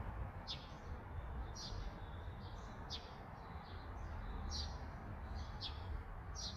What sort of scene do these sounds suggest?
park